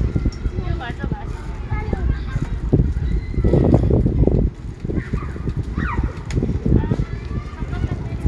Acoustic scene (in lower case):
residential area